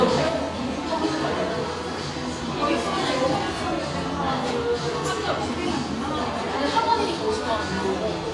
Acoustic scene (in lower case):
cafe